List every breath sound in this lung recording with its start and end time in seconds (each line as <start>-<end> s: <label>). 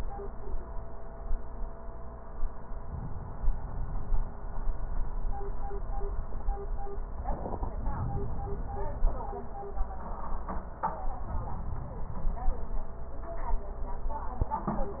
2.75-4.32 s: inhalation
7.73-9.07 s: inhalation
11.26-12.60 s: inhalation